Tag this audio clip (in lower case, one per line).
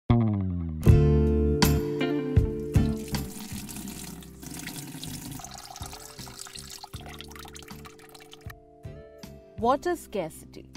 faucet
water